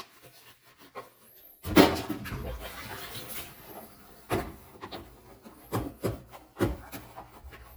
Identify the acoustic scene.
kitchen